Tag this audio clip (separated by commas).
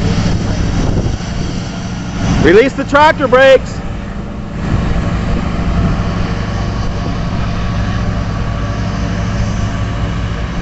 Truck, Vehicle, Speech